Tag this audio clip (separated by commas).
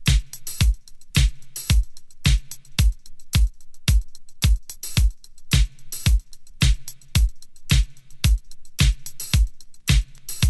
Music